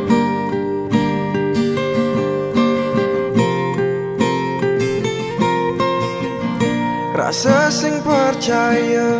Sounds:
music

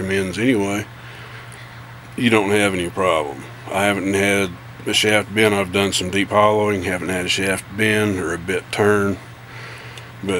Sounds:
speech

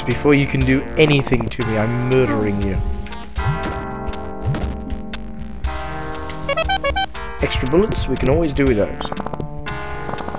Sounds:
music
speech

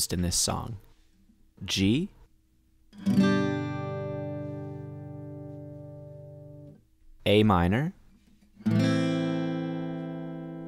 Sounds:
strum
speech
music

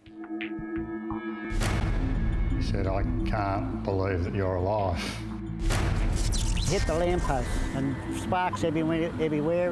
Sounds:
speech
music

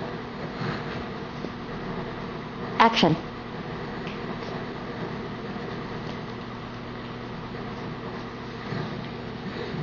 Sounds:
speech

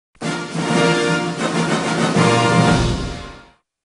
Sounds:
music

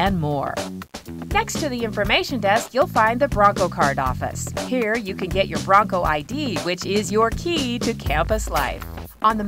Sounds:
speech
music

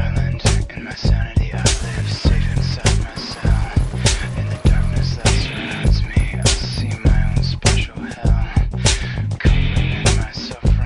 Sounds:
theme music
pop music
music

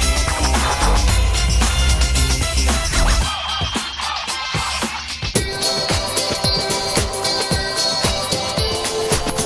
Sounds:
music
jingle (music)

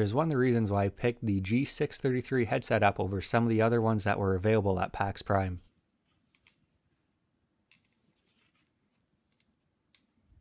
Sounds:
speech

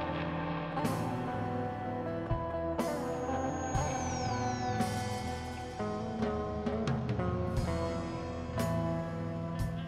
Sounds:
music
mantra

